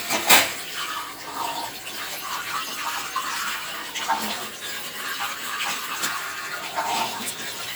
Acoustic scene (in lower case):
kitchen